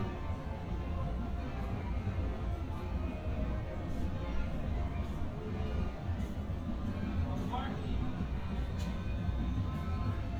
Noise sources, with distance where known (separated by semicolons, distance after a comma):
music from a fixed source